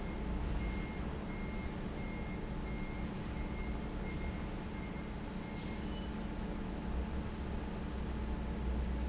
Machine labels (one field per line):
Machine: fan